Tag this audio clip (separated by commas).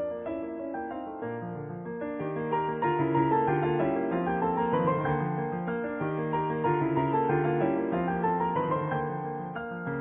Music